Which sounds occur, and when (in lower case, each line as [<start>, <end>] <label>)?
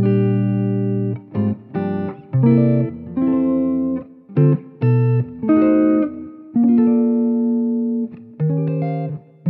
[0.00, 9.45] music